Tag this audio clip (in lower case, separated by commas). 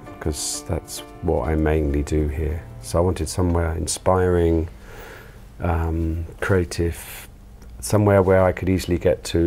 speech, music